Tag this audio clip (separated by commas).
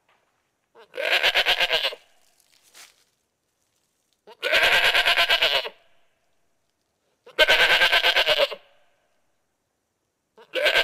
goat bleating